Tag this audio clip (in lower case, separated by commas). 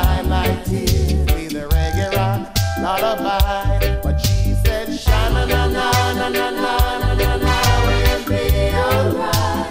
music